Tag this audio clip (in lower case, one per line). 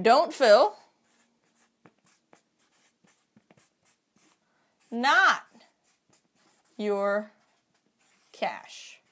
speech